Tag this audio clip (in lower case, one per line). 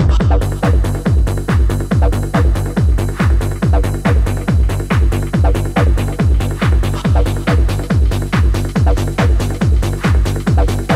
music